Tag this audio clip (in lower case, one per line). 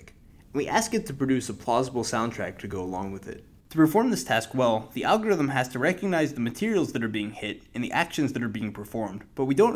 speech